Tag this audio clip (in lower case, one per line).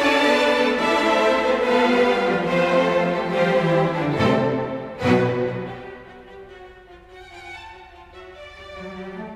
orchestra
music